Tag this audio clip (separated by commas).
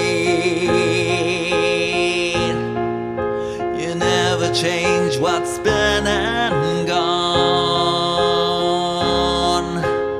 Music